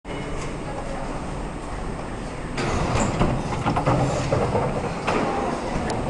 Door opening and voices in the distant background